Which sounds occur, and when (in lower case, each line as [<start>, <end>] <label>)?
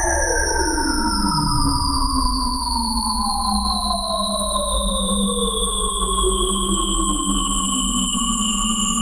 [0.00, 9.01] music